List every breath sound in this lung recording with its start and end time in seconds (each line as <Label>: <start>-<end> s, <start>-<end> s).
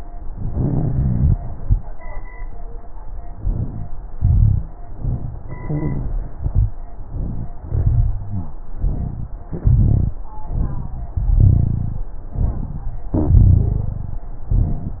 Inhalation: 0.38-1.33 s, 3.36-3.85 s, 4.88-5.37 s, 6.96-7.55 s, 8.71-9.30 s, 10.47-11.14 s, 12.28-12.92 s
Exhalation: 4.18-4.67 s, 5.45-6.39 s, 7.65-8.58 s, 9.49-10.15 s, 11.29-12.05 s, 13.23-14.25 s
Rhonchi: 0.38-1.33 s, 4.18-4.67 s, 5.45-6.39 s, 6.42-6.77 s, 6.96-7.57 s, 7.65-8.58 s, 8.71-9.30 s, 9.49-10.15 s, 10.47-11.14 s, 11.29-12.05 s, 13.23-14.25 s